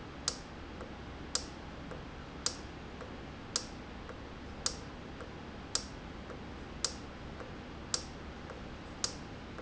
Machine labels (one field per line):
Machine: valve